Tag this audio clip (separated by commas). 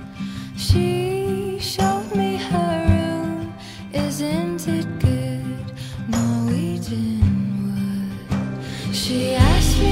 Music